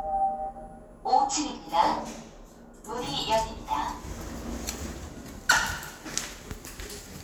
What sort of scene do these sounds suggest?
elevator